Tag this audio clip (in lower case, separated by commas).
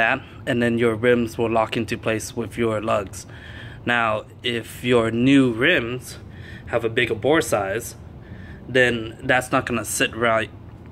speech